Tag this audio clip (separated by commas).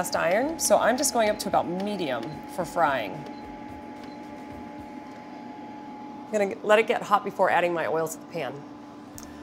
Speech